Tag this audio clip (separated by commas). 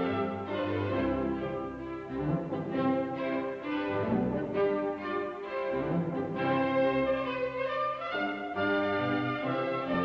Musical instrument, Cello, Music